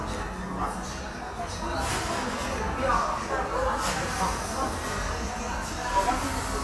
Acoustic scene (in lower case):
cafe